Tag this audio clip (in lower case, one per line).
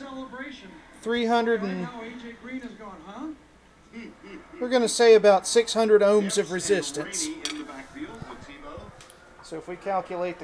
speech